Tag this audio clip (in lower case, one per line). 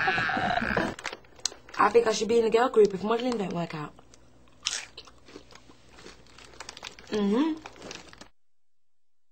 speech